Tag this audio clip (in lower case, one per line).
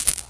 rattle